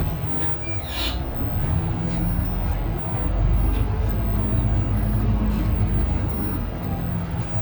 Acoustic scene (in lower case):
bus